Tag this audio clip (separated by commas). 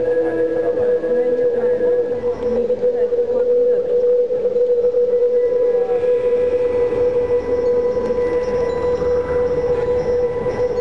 Music, Speech